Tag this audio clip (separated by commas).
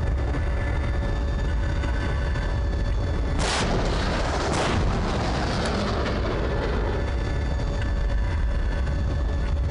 outside, rural or natural